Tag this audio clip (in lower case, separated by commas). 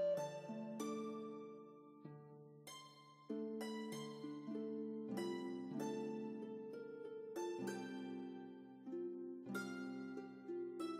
soul music, music